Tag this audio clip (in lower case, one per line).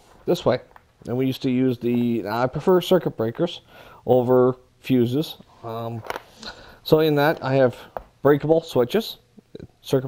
speech